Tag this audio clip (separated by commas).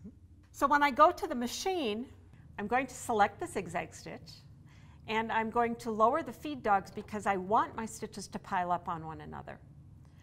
Speech